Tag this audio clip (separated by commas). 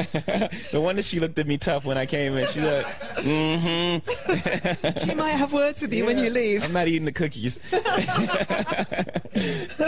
Speech